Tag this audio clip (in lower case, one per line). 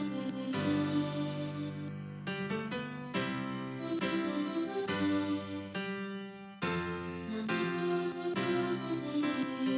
music